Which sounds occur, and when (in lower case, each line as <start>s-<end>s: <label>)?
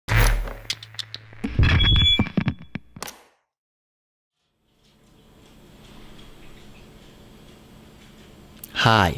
2.3s-2.8s: generic impact sounds
2.9s-3.4s: sound effect
4.3s-9.1s: background noise
8.6s-9.1s: man speaking